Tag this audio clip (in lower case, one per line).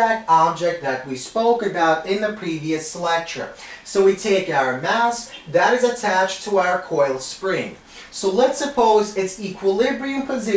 speech